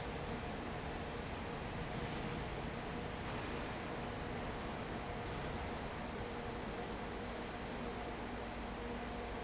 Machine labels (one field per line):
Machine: fan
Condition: abnormal